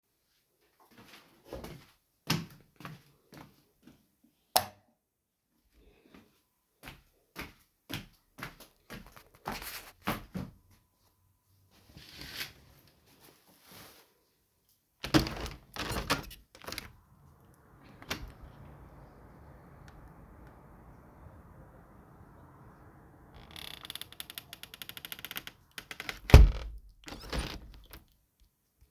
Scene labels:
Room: bedroom; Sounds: footsteps, light switch, window (more than once)

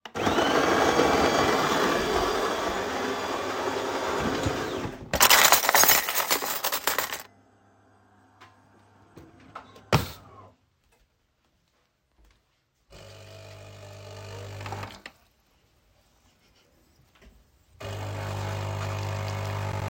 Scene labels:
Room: kitchen; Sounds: coffee machine, cutlery and dishes

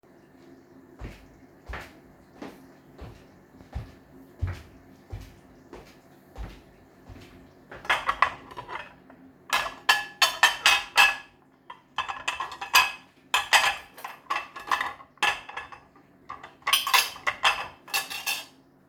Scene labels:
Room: kitchen; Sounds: footsteps, cutlery and dishes

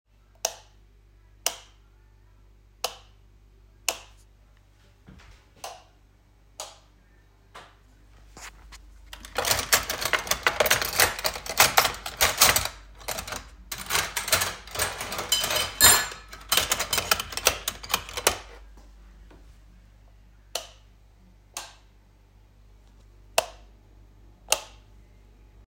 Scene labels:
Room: kitchen; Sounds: light switch, cutlery and dishes

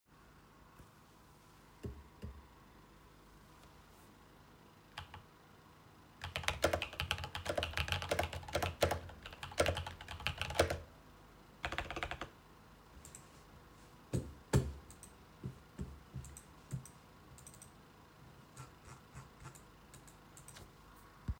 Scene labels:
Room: office; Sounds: light switch, keyboard typing

